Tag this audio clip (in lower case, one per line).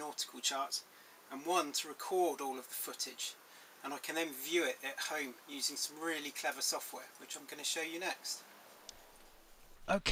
speech